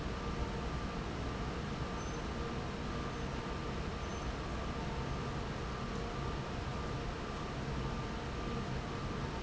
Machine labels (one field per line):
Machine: fan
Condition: normal